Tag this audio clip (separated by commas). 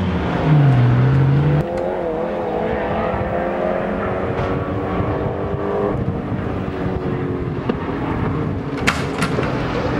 Car, Vehicle, revving, Medium engine (mid frequency)